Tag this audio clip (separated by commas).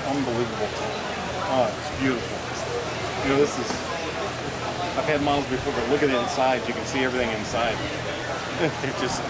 Speech